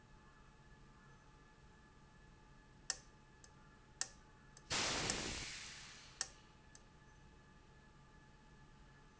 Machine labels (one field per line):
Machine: valve